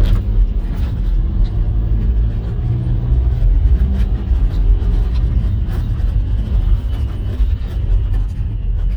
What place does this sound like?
car